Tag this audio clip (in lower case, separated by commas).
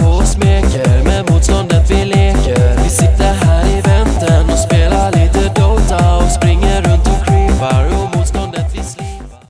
music